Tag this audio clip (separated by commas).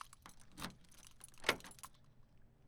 Door, Domestic sounds, Vehicle, Motor vehicle (road), Car